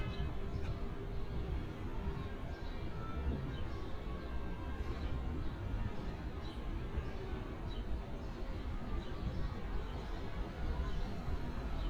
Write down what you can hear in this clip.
car horn, music from a fixed source